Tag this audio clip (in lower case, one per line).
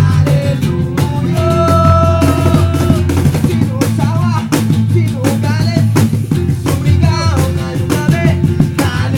music
plucked string instrument
guitar
singing